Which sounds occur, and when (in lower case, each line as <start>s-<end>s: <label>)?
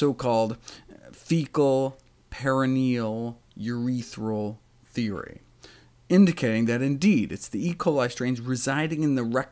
0.0s-0.5s: male speech
0.0s-9.5s: mechanisms
0.6s-0.8s: breathing
0.8s-1.1s: human voice
1.1s-1.9s: male speech
1.9s-2.1s: clicking
2.3s-3.3s: male speech
3.4s-3.6s: clicking
3.6s-4.5s: male speech
4.9s-5.4s: male speech
5.6s-5.9s: breathing
6.0s-9.4s: male speech
7.6s-7.8s: generic impact sounds